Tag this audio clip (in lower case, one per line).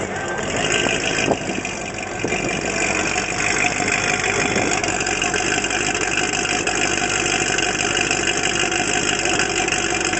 engine